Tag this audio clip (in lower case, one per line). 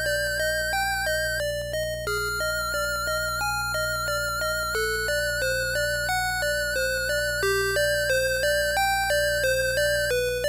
music